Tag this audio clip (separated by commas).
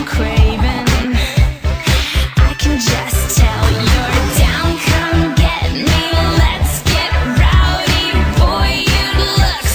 Music, New-age music, Disco, Exciting music